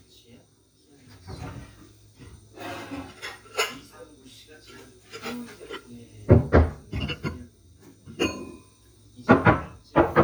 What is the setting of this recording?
kitchen